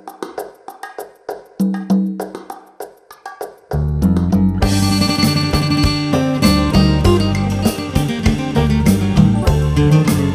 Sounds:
music

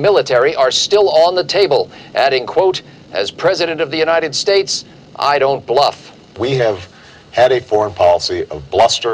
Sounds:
speech

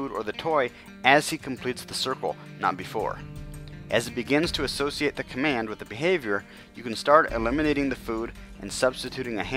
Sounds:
speech, music

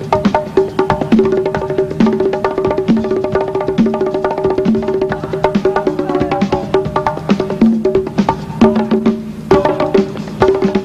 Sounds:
playing bongo

